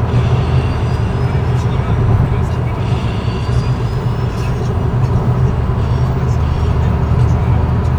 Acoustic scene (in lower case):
car